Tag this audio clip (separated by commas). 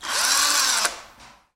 Power tool, Tools, Drill, Engine